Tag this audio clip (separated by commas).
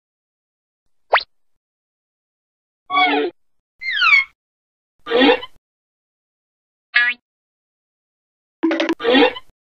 Sound effect